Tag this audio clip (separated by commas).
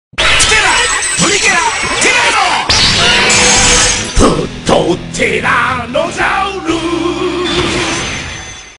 Music, Sound effect